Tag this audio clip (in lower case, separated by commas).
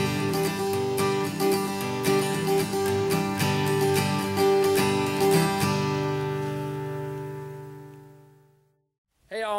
music